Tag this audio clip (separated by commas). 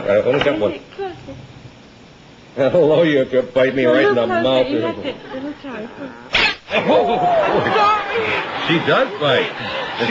Yip, Speech